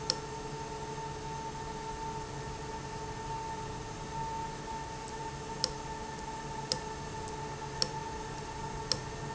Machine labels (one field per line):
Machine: valve